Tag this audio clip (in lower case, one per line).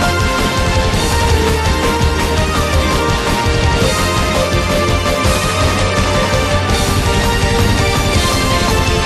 music